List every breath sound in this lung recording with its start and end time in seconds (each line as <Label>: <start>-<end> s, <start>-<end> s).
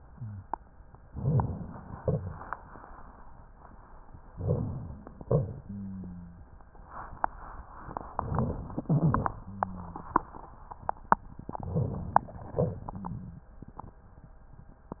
Inhalation: 1.05-1.97 s, 4.31-5.23 s, 8.16-8.80 s, 11.56-12.40 s
Exhalation: 1.96-3.22 s, 12.42-13.51 s
Wheeze: 8.85-9.13 s
Rhonchi: 1.10-2.00 s, 5.67-6.40 s, 9.44-10.26 s, 12.53-13.43 s